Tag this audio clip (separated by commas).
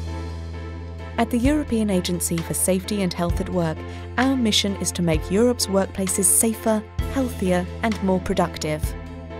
Speech, Music